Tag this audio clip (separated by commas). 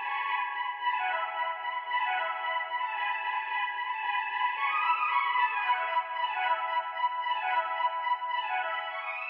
Music